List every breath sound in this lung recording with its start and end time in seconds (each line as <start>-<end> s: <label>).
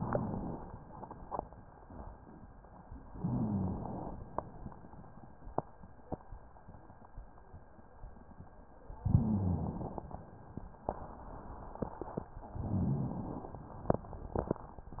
0.00-0.79 s: inhalation
3.15-3.86 s: rhonchi
3.15-4.20 s: inhalation
8.95-9.80 s: rhonchi
8.95-10.14 s: inhalation
12.57-13.37 s: rhonchi
12.57-13.57 s: inhalation